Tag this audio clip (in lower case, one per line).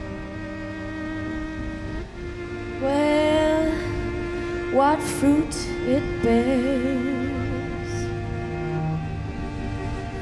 music